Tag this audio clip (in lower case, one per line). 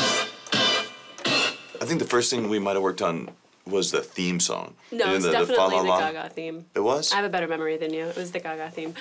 speech